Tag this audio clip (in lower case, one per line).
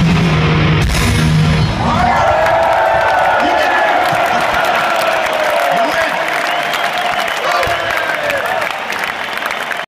speech
music